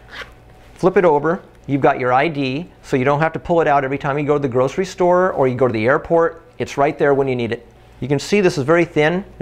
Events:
[0.00, 0.32] zipper (clothing)
[0.00, 9.41] mechanisms
[0.40, 0.73] surface contact
[0.69, 1.36] male speech
[1.65, 2.62] male speech
[2.78, 6.32] male speech
[6.53, 7.56] male speech
[7.99, 9.18] male speech
[9.36, 9.41] male speech

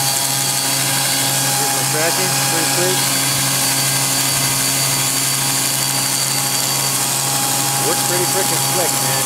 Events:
[0.00, 9.25] mechanisms
[1.47, 3.06] male speech
[7.79, 9.20] male speech

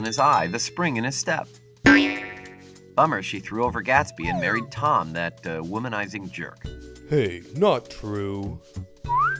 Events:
[0.00, 9.35] music
[1.84, 2.74] boing
[2.98, 8.59] conversation
[4.23, 4.66] sound effect
[7.60, 8.59] male speech

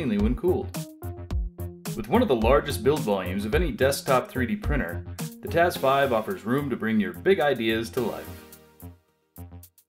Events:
[0.03, 0.69] man speaking
[0.03, 9.85] music
[1.96, 4.98] man speaking
[5.42, 8.40] man speaking

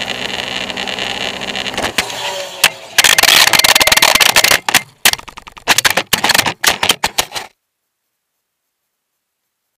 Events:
[0.00, 3.00] vehicle
[0.00, 9.75] background noise
[1.76, 2.06] generic impact sounds
[2.60, 2.76] generic impact sounds
[2.94, 4.79] generic impact sounds
[4.98, 7.54] generic impact sounds

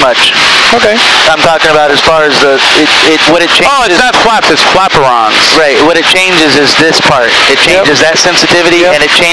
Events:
[0.00, 0.35] man speaking
[0.00, 9.32] airscrew
[0.66, 1.01] man speaking
[1.22, 2.83] man speaking
[3.00, 5.30] man speaking
[5.46, 7.30] man speaking
[7.47, 9.32] man speaking

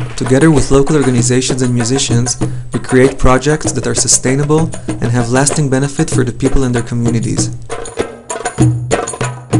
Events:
[0.00, 2.38] man speaking
[0.00, 9.55] music
[2.42, 2.64] breathing
[2.71, 4.68] man speaking
[4.67, 4.89] breathing
[4.97, 7.51] man speaking

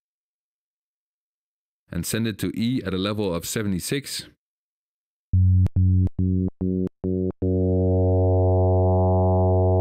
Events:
[1.84, 4.34] male speech
[5.26, 5.66] sound effect
[5.73, 6.04] sound effect
[6.17, 6.49] sound effect
[6.59, 6.88] sound effect
[6.99, 7.30] sound effect
[7.39, 9.80] sound effect

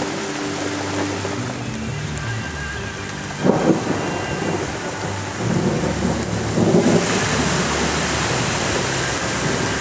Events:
[0.03, 9.80] music
[0.03, 9.80] rain
[3.24, 9.80] water
[3.30, 6.83] thunder

